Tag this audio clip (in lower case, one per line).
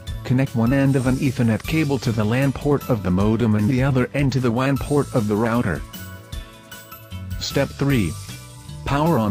speech
music